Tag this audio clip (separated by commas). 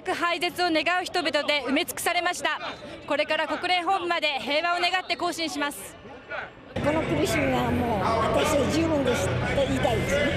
people marching